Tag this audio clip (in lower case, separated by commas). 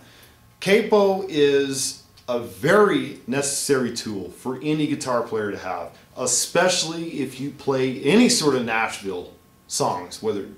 speech